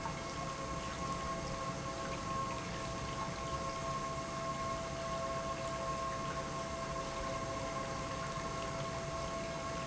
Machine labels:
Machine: pump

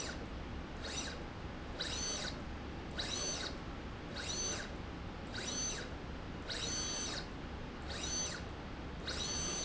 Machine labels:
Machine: slide rail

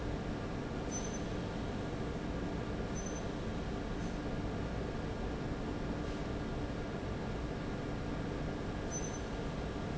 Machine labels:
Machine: fan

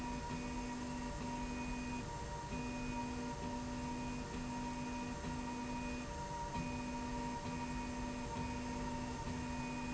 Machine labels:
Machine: slide rail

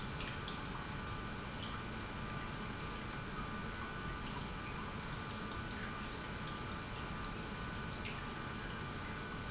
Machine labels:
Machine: pump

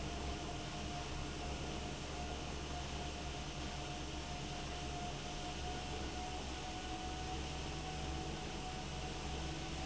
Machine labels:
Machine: fan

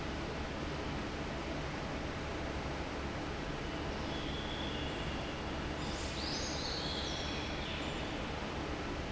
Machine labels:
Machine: fan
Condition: normal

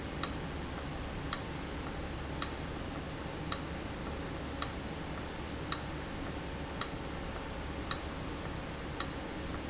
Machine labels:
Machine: valve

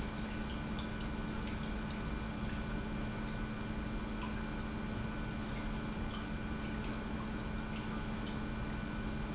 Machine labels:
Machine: pump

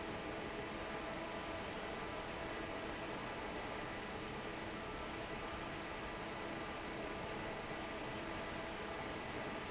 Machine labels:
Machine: fan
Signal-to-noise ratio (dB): 6 dB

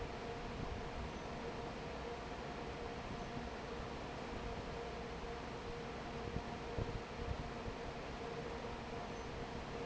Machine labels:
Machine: fan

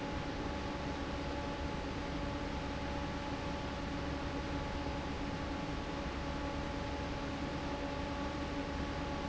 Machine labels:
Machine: fan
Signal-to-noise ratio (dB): -6 dB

